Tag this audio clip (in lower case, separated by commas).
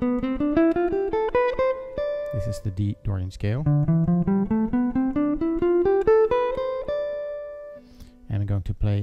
guitar, plucked string instrument, musical instrument, speech, music, acoustic guitar, jazz